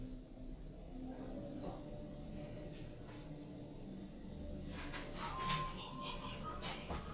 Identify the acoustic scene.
elevator